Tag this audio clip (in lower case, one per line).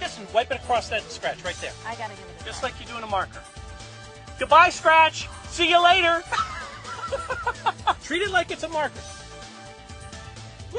speech
music